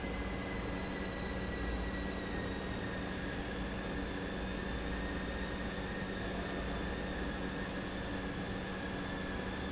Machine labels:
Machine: pump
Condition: normal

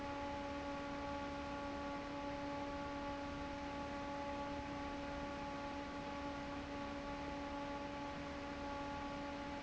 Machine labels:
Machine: fan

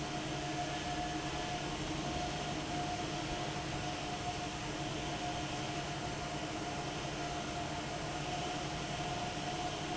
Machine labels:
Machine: fan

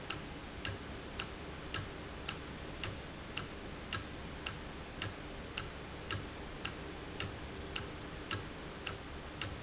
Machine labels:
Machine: valve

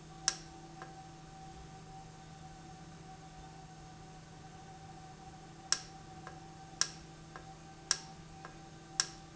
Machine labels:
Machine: valve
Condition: normal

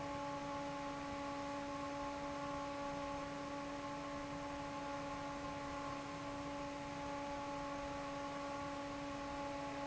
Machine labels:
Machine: fan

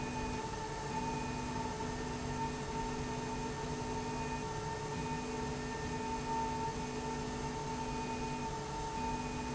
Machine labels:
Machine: slide rail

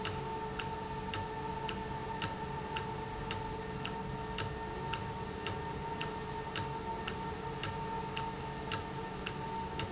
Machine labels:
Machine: valve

